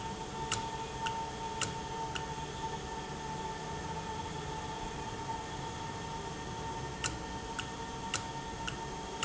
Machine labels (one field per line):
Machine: valve